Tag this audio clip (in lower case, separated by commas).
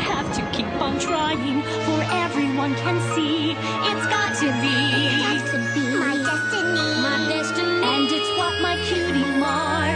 tinkle